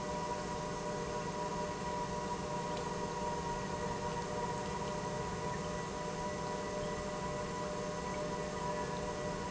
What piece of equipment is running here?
pump